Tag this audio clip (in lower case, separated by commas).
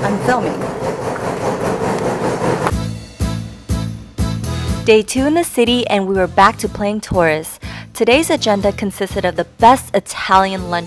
speech, music, outside, urban or man-made